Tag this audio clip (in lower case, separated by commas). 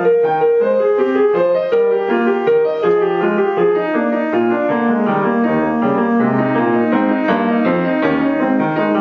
music